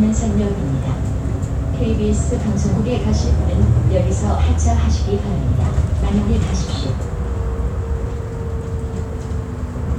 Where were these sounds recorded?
on a bus